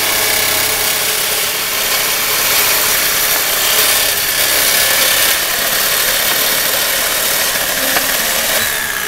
A sharp power tool sound is followed by the voice of a man in the background